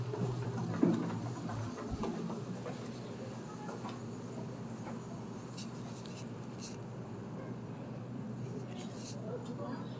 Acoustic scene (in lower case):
elevator